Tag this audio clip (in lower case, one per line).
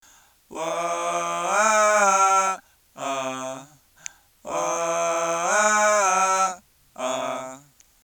human voice